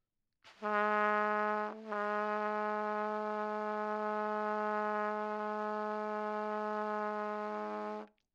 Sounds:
music, musical instrument, brass instrument, trumpet

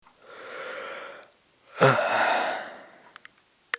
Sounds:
human voice

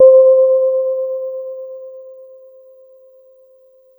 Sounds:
keyboard (musical), piano, music, musical instrument

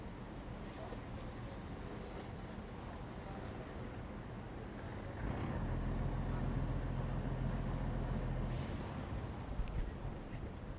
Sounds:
water vehicle, vehicle

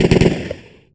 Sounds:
gunfire, explosion

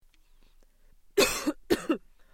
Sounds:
cough, respiratory sounds

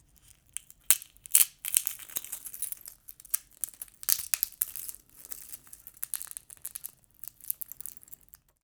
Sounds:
crack, crackle

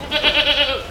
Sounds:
livestock, animal

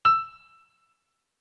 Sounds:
music, piano, keyboard (musical), musical instrument

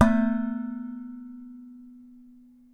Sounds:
dishes, pots and pans, domestic sounds

